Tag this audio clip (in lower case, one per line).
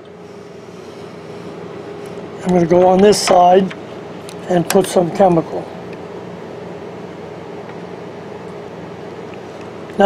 printer